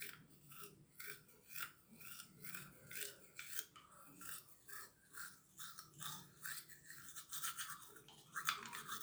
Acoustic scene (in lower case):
restroom